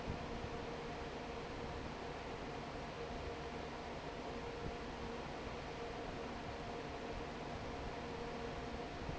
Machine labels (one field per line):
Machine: fan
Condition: normal